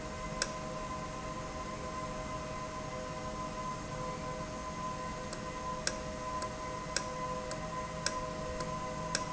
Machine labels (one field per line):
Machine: valve